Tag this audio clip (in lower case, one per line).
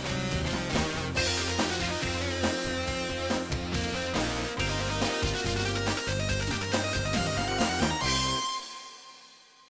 soundtrack music
music